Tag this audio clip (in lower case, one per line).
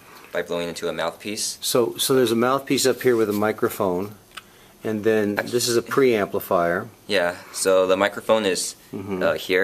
speech